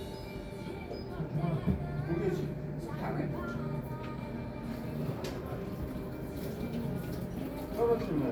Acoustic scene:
cafe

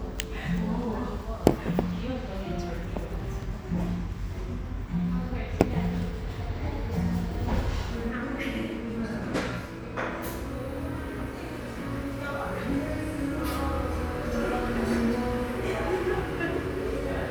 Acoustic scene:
cafe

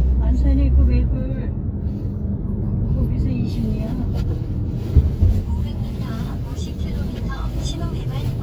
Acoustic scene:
car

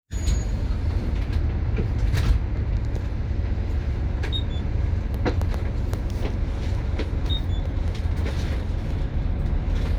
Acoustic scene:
bus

